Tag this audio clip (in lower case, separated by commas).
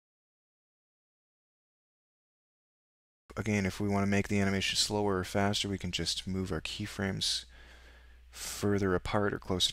speech